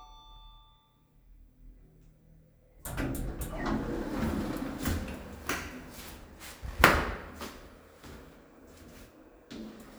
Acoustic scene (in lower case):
elevator